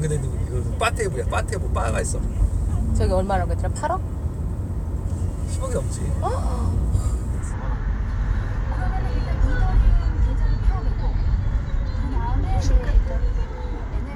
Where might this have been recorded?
in a car